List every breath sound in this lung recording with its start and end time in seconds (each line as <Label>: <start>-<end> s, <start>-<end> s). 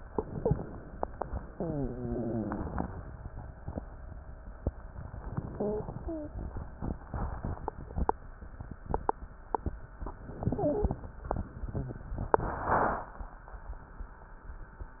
Inhalation: 10.24-11.02 s
Wheeze: 0.00-0.74 s, 1.59-2.81 s, 5.54-5.88 s, 6.00-6.35 s, 10.46-11.02 s